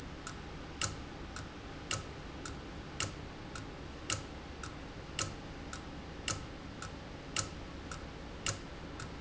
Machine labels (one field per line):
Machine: valve